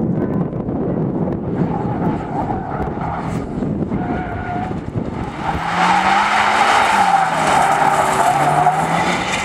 A cars tires are screeching